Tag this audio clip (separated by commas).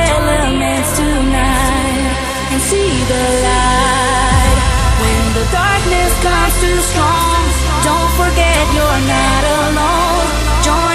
Techno, Music, Electronic music